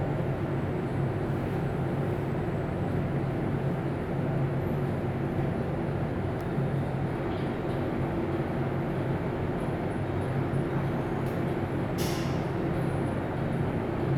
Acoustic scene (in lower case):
elevator